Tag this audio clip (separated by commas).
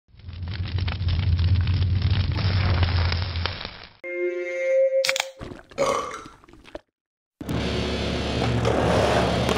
Music, Skateboard